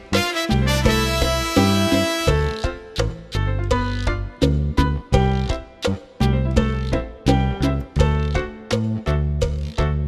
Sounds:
Music

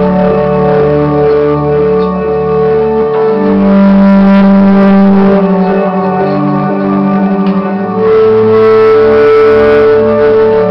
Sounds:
Music, Echo

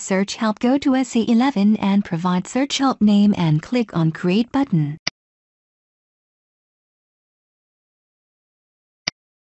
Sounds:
Speech

